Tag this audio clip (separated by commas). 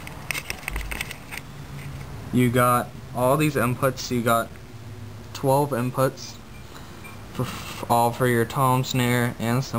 Speech